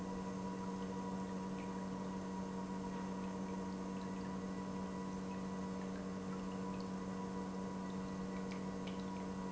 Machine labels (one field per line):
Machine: pump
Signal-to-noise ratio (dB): 6 dB